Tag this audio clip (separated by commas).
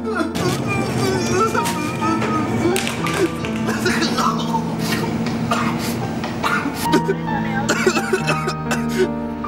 Speech, Music, Whimper